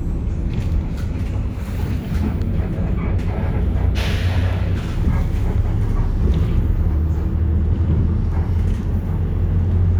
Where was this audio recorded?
on a bus